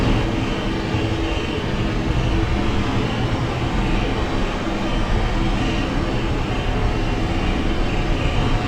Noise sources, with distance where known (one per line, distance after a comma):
unidentified impact machinery, near